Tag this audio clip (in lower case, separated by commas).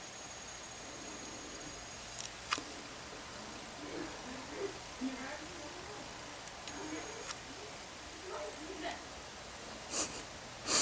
outside, rural or natural, domestic animals, speech